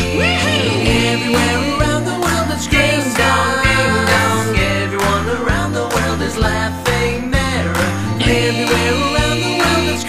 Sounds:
Music, Christmas music, Christian music

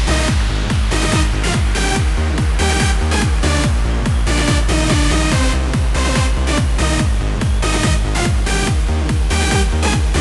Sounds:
Music

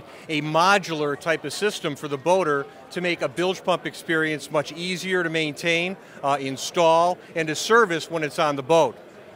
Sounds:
Speech

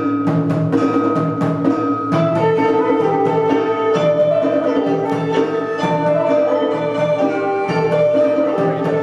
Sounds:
Music, Traditional music

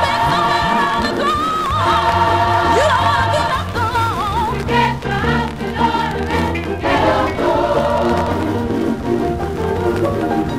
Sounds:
Choir, Music

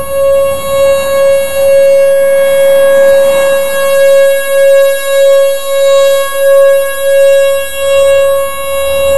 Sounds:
Civil defense siren, Car, Vehicle

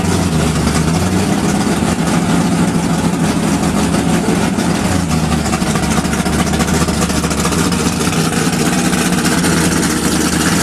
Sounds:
Vehicle

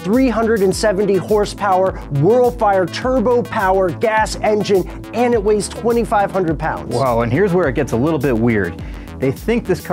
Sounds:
Music, Speech

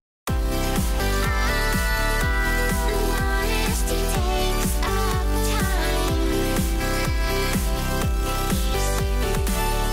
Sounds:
Music

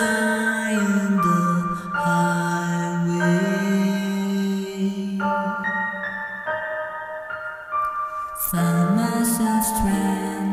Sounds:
Female singing, Music

